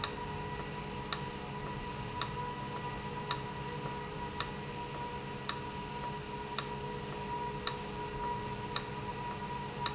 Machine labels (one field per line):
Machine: valve